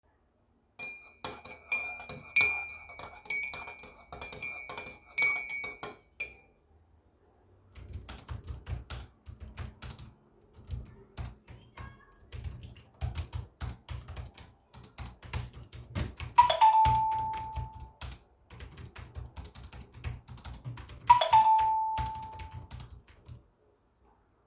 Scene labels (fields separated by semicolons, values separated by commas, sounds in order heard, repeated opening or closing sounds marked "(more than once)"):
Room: office; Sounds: cutlery and dishes, keyboard typing, phone ringing